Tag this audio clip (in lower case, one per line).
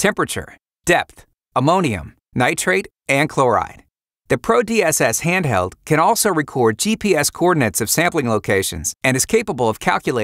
speech